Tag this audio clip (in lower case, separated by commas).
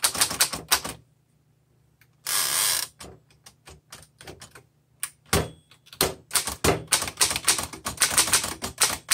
typing on typewriter